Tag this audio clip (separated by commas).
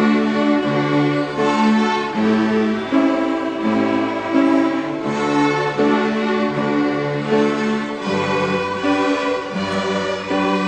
Music